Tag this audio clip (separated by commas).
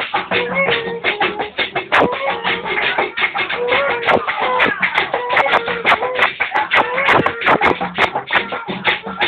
Music